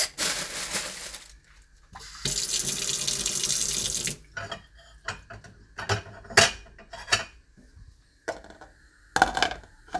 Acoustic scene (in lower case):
kitchen